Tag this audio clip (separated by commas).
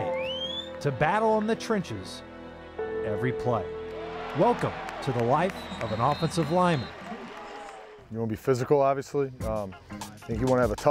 Music, Speech